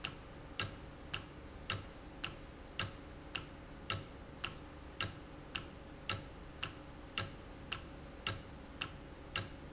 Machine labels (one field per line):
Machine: valve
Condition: normal